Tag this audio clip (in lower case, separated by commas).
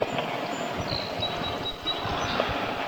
wild animals, bird, animal